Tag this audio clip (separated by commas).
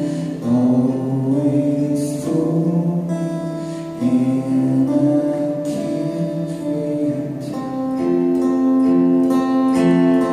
Music, Male singing